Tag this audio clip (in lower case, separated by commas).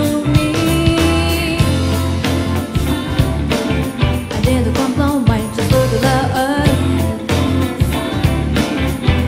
music, exciting music, ska, pop music, jingle (music)